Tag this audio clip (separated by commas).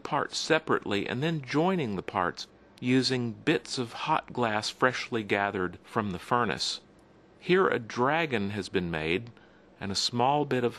Speech